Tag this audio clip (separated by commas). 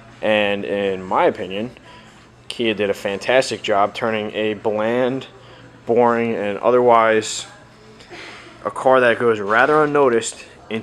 Speech